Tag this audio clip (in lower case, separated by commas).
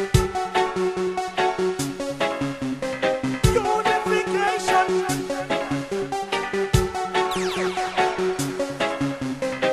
electronic music, music